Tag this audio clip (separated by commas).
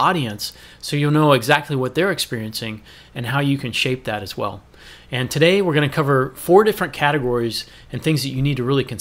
Speech